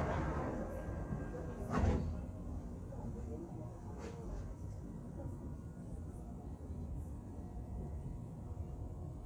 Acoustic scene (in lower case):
subway train